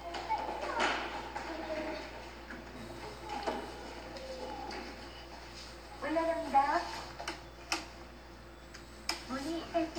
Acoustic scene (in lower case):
elevator